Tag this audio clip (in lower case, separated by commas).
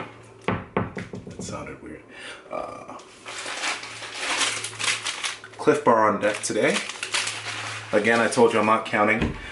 speech